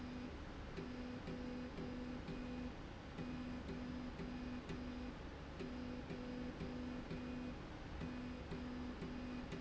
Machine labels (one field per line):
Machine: slide rail